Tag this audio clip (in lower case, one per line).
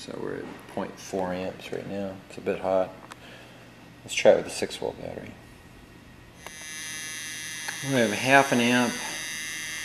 speech
inside a small room